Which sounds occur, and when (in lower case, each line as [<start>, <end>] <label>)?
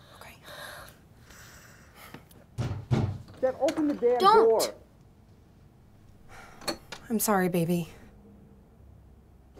[0.00, 0.31] whispering
[0.01, 7.89] conversation
[0.35, 0.94] breathing
[1.16, 2.28] breathing
[2.11, 2.32] generic impact sounds
[2.56, 3.21] knock
[3.38, 4.74] man speaking
[3.65, 3.95] generic impact sounds
[4.01, 4.68] kid speaking
[4.94, 5.04] generic impact sounds
[5.26, 5.35] generic impact sounds
[6.02, 6.13] generic impact sounds
[6.26, 6.68] breathing
[6.63, 6.98] generic impact sounds
[7.08, 7.89] woman speaking
[7.85, 8.14] breathing